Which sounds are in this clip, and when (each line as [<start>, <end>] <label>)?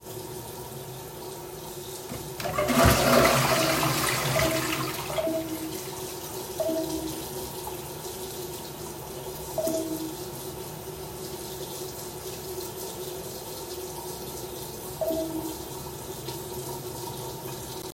[0.02, 17.94] running water
[2.41, 5.63] toilet flushing
[4.30, 4.80] phone ringing
[5.04, 5.77] phone ringing
[6.53, 7.22] phone ringing
[9.47, 9.97] phone ringing
[14.97, 15.43] phone ringing